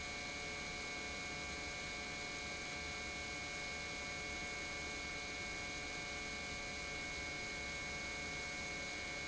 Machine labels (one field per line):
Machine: pump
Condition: normal